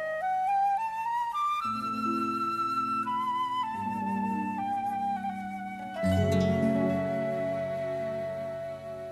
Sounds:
music
flute

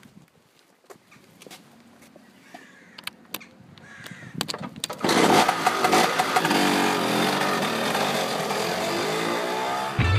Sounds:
vehicle
music
outside, rural or natural
motorcycle

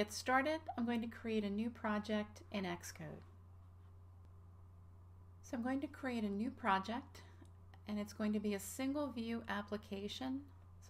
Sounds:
speech

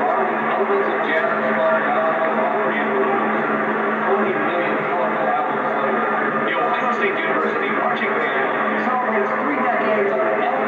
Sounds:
speech

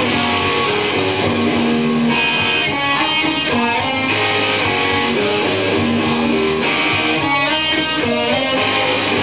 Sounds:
strum
musical instrument
electric guitar
music
plucked string instrument
guitar

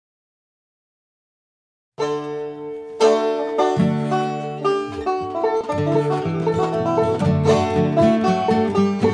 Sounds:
musical instrument
bluegrass
bowed string instrument
plucked string instrument
banjo
guitar
country
music

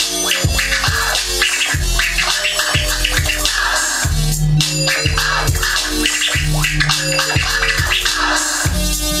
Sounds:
scratching (performance technique)
music

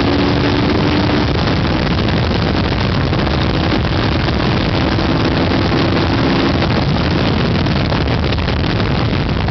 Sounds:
engine
idling
vehicle

